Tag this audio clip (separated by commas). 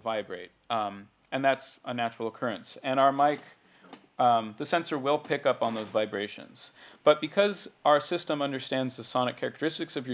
Speech